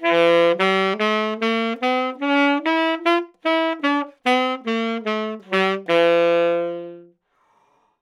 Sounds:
Wind instrument, Music, Musical instrument

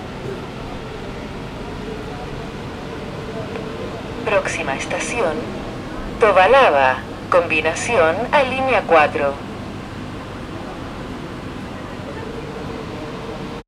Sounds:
Rail transport, Vehicle, underground

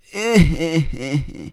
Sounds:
Human voice, Laughter

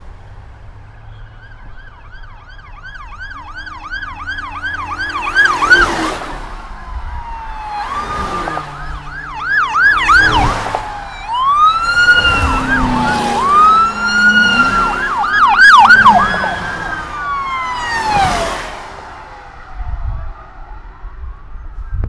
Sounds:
Vehicle, Siren, Alarm, Motor vehicle (road)

